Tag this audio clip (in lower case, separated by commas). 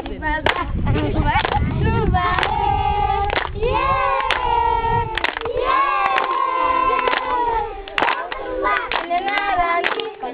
speech